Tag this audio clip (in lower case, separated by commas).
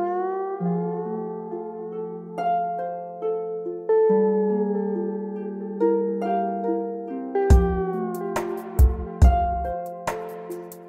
music